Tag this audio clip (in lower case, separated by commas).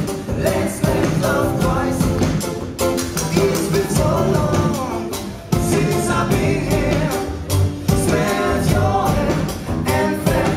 musical instrument, music, singing